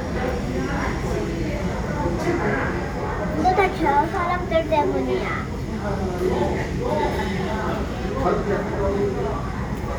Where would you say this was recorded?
in a crowded indoor space